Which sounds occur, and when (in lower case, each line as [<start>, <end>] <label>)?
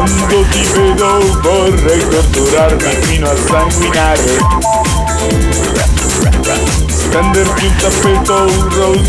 [0.00, 9.05] music
[0.03, 4.45] male speech
[5.49, 6.77] male speech
[7.35, 9.05] male speech